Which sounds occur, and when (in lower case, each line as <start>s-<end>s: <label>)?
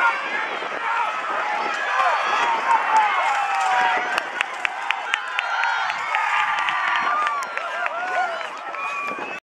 0.0s-0.8s: wind noise (microphone)
0.0s-9.4s: cheering
1.1s-1.8s: wind noise (microphone)
1.7s-2.1s: clapping
1.8s-2.3s: shout
1.9s-2.6s: whoop
2.3s-3.1s: wind noise (microphone)
2.4s-3.1s: shout
2.6s-2.8s: clapping
2.9s-3.0s: clapping
3.2s-4.2s: whoop
3.6s-3.6s: clapping
3.7s-4.5s: wind noise (microphone)
4.1s-4.2s: clapping
4.4s-4.4s: clapping
4.6s-5.1s: whoop
4.6s-4.7s: clapping
4.9s-4.9s: clapping
5.1s-5.2s: clapping
5.3s-5.4s: clapping
5.6s-5.6s: clapping
5.9s-6.0s: clapping
6.1s-6.2s: clapping
6.5s-6.7s: clapping
6.6s-7.6s: wind noise (microphone)
6.9s-7.0s: clapping
7.0s-8.6s: whoop
7.2s-7.3s: clapping
7.4s-7.6s: clapping
7.8s-7.9s: clapping
8.1s-9.4s: wind noise (microphone)
8.4s-8.5s: clapping
8.7s-8.8s: clapping
8.7s-9.2s: whoop
8.7s-9.4s: whistling
9.0s-9.1s: clapping